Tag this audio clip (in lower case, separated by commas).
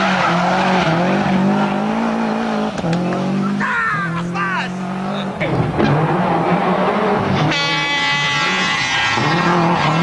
vehicle, car, speech, accelerating